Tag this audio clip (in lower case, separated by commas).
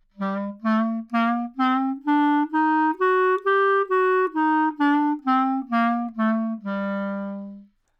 music, wind instrument, musical instrument